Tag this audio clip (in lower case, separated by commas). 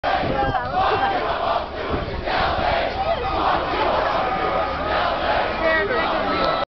crowd, speech